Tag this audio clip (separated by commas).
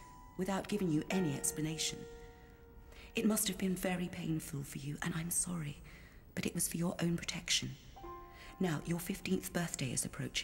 Music, Speech